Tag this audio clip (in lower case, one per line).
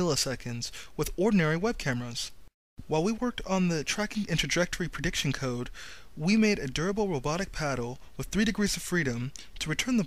speech